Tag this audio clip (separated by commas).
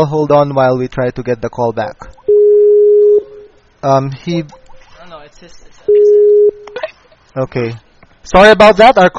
man speaking, Speech, Conversation